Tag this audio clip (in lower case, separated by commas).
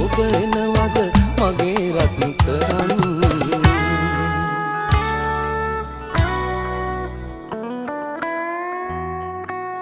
music